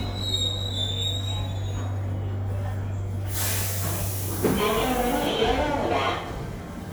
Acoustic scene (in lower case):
subway station